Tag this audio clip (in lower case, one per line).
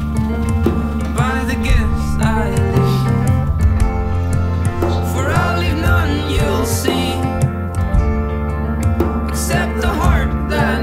guitar
music
acoustic guitar
musical instrument
plucked string instrument